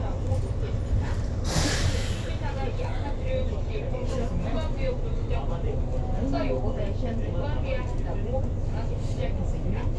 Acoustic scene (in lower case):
bus